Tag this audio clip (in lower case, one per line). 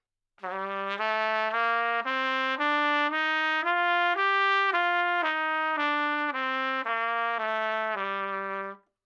musical instrument
brass instrument
music
trumpet